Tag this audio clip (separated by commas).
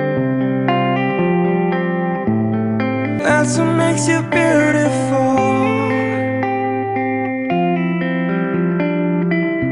Music